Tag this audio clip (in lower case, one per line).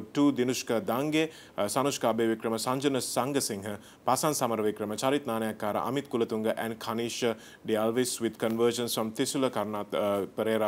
speech